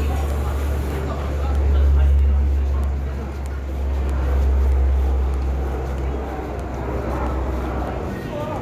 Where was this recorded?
in a residential area